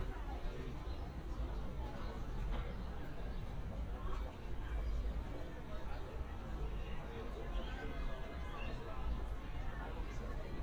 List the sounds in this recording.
car horn, unidentified human voice